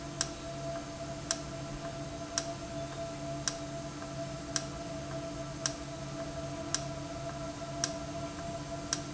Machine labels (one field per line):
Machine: valve